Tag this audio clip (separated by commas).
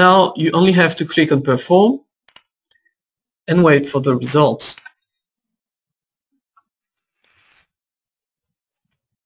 Speech, inside a small room